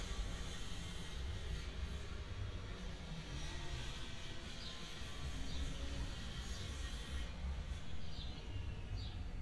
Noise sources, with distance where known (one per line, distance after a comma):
small or medium rotating saw